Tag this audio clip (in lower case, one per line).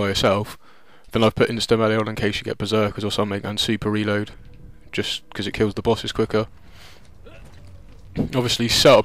speech